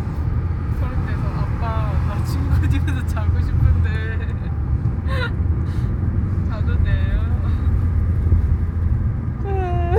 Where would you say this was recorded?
in a car